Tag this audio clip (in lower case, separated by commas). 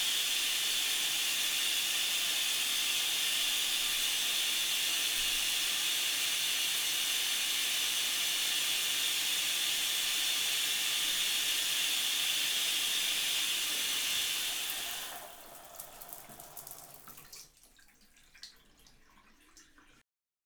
home sounds, bathtub (filling or washing)